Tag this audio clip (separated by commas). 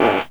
Fart